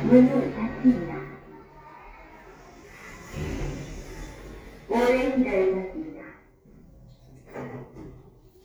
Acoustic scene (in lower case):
elevator